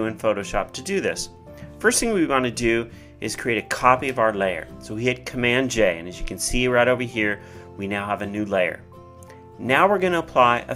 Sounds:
Music, Speech

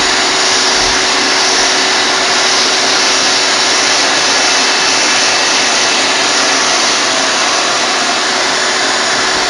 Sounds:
Tools, inside a small room, Vacuum cleaner

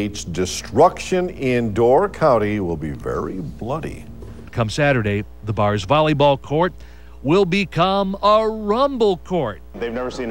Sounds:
Speech

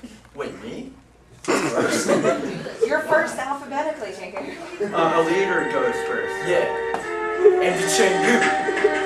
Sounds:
Music, Speech, Conversation, woman speaking, man speaking

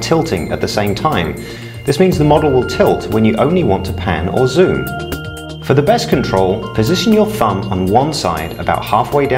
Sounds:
Speech, Music

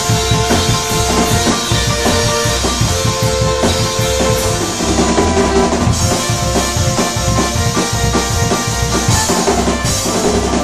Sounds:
Music, Musical instrument, Bass drum, Drum kit, Drum

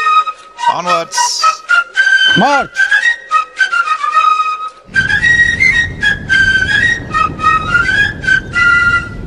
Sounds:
Speech, Music, outside, rural or natural

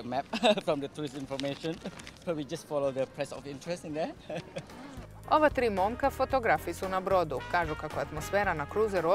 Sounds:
Music, Speech

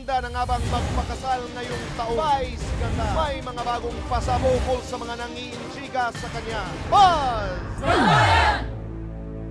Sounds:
Speech, Music

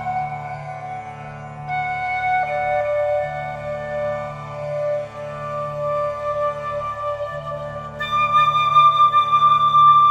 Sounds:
Music, Flute

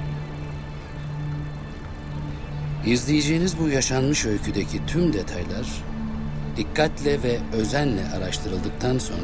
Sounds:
Music, Speech

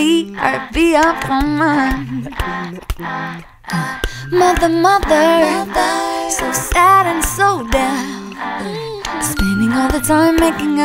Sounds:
Music

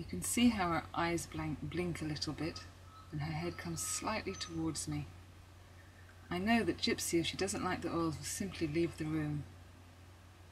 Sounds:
Speech

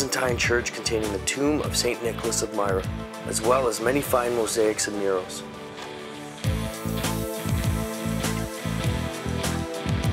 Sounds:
Speech, Music

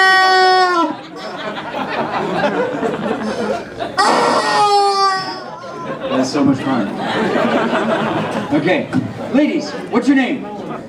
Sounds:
Speech

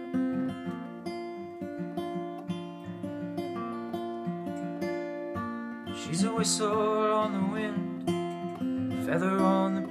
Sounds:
Musical instrument, Guitar, Plucked string instrument, Singing, Strum

